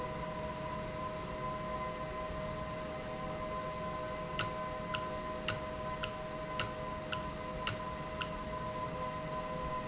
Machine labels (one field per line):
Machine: valve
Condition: normal